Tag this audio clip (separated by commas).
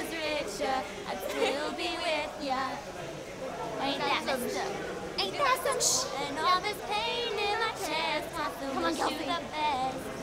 Female singing